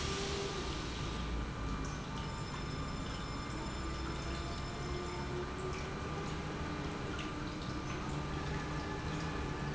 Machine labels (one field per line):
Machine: pump